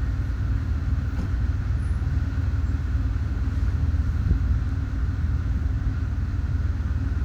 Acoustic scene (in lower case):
residential area